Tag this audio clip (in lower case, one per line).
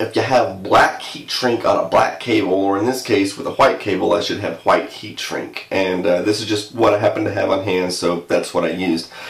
speech